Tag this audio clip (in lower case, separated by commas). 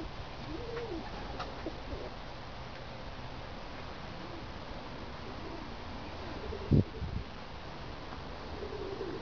outside, rural or natural, dove, bird